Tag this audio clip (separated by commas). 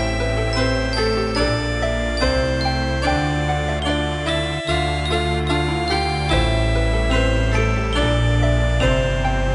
Music, Soundtrack music, Background music